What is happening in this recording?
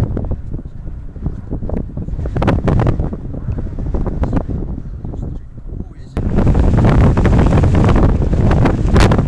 Heavy continuous wind